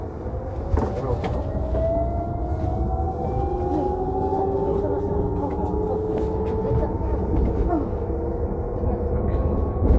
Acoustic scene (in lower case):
bus